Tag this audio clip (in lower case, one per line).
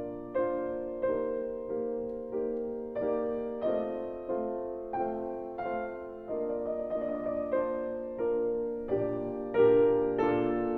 music